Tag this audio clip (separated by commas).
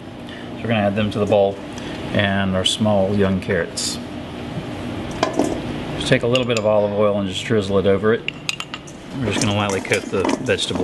Speech